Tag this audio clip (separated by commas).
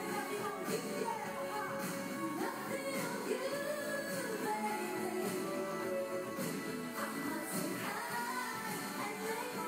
Music